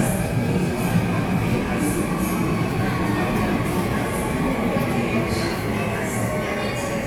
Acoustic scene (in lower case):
subway station